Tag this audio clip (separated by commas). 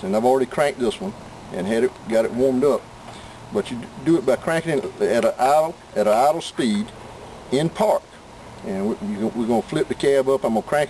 Speech